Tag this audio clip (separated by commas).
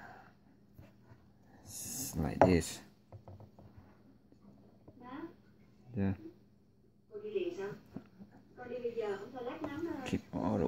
Speech